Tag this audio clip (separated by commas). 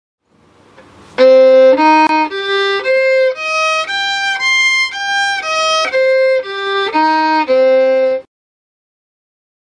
Music, fiddle, Bowed string instrument, Musical instrument